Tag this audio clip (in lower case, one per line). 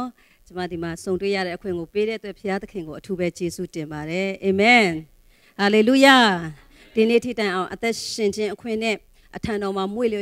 speech